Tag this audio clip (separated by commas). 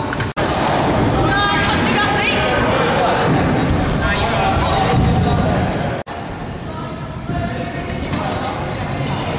Speech